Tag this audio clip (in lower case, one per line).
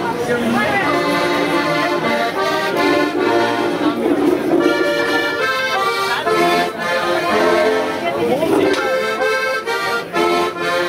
speech
music